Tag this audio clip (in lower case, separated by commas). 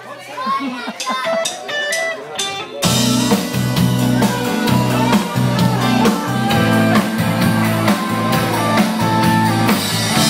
speech, music